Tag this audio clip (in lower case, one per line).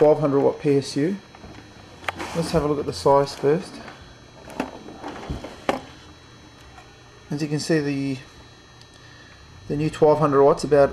speech